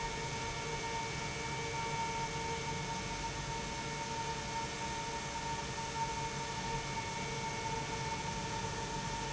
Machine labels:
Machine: pump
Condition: normal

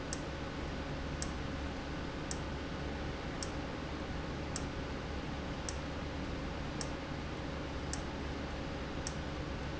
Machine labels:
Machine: valve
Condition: abnormal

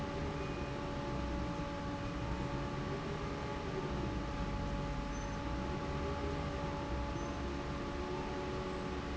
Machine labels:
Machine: fan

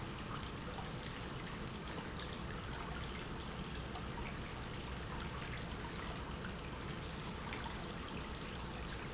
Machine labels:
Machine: pump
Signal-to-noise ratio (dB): 0 dB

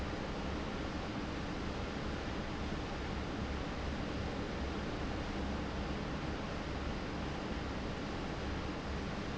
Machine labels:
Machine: fan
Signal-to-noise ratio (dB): -6 dB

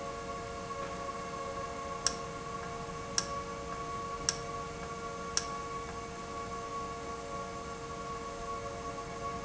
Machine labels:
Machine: valve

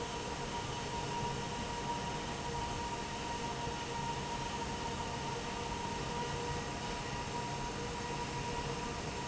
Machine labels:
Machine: fan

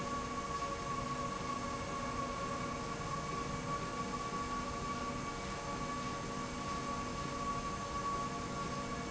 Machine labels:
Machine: slide rail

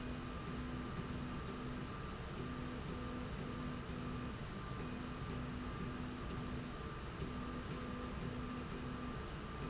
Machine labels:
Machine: slide rail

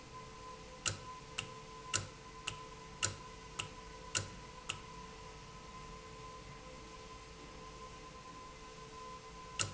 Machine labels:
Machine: valve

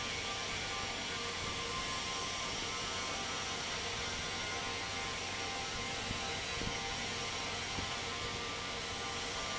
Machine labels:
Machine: fan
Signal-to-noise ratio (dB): -6 dB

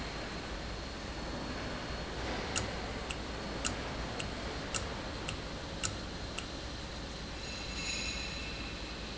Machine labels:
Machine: valve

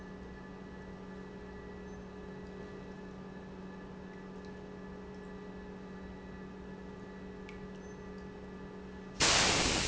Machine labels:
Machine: pump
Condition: normal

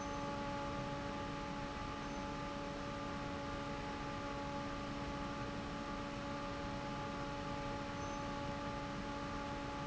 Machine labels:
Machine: fan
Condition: normal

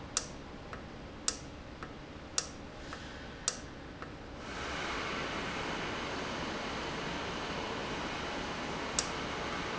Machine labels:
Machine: valve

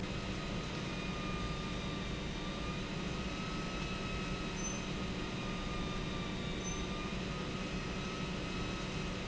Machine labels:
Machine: pump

